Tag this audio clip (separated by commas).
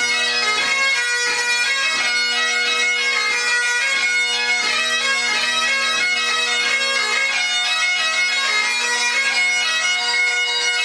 Musical instrument, Music, Bagpipes